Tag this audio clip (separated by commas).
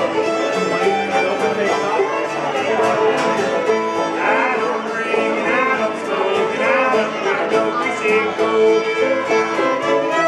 Music, Pizzicato, fiddle, Speech, Musical instrument